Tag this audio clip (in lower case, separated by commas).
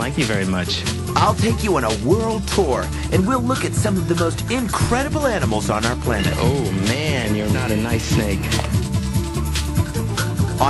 speech, music